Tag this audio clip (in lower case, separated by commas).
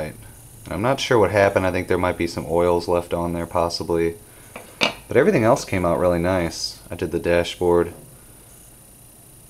speech, inside a small room